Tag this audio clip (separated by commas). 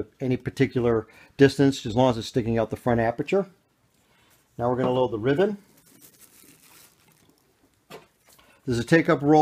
Speech